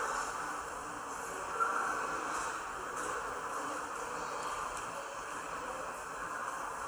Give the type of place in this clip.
subway station